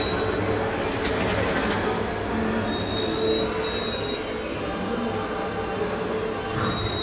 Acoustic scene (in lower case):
subway station